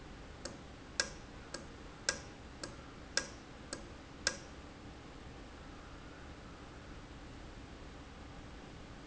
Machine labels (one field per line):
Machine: valve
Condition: normal